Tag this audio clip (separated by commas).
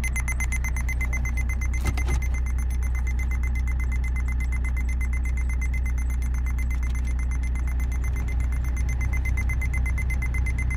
reversing beeps